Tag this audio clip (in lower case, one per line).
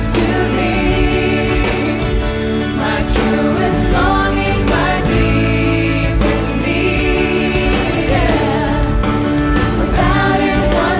christian music
inside a public space
inside a large room or hall
singing
music